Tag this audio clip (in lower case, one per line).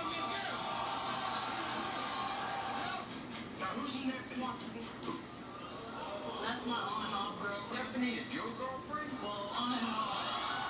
screaming
speech